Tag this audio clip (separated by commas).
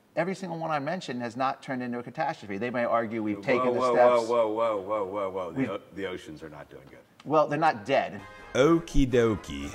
Music, Speech